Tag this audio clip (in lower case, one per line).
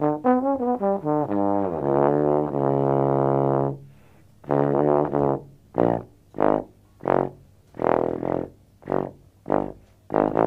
trombone
brass instrument